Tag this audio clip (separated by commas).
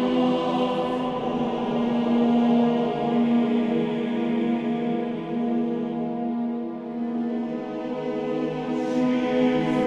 Theme music, Music